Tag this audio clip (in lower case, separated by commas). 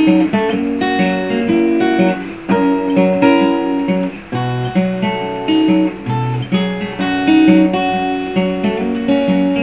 electric guitar, plucked string instrument, music, musical instrument, blues, guitar